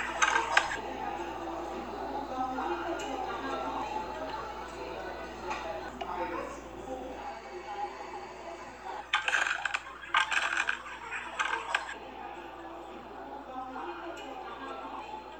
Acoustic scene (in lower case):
cafe